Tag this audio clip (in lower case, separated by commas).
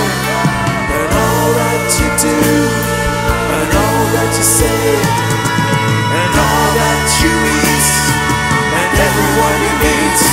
progressive rock, singing, christian music, rock music, music